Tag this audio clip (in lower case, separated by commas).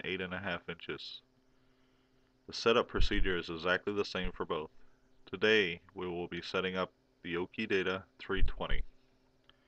speech